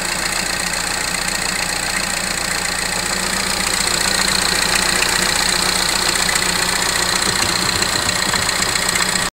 An engine is idling